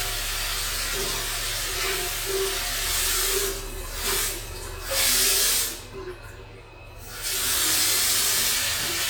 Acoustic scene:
restroom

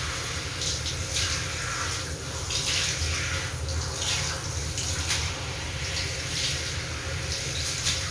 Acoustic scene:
restroom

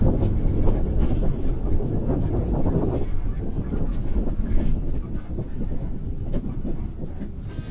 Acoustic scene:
bus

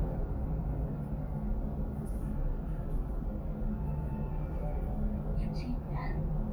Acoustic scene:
elevator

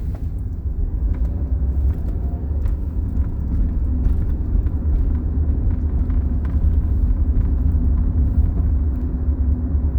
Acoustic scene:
car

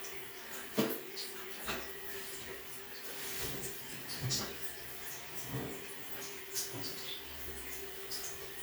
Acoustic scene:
restroom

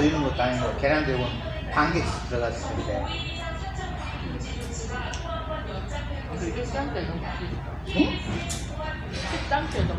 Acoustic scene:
restaurant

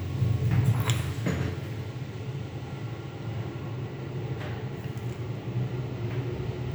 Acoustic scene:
elevator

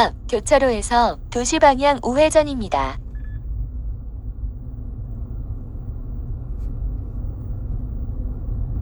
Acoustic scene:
car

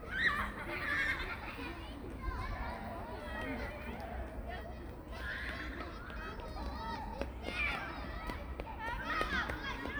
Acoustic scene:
park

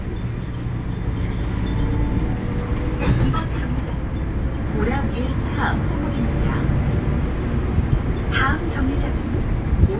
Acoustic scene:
bus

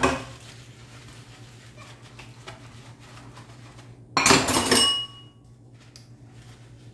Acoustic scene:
kitchen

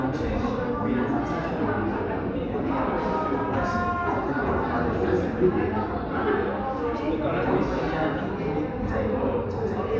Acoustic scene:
crowded indoor space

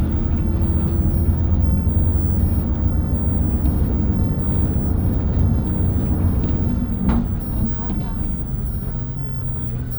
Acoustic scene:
bus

